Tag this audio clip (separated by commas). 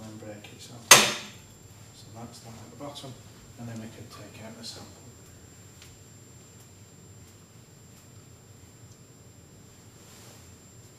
Speech, inside a small room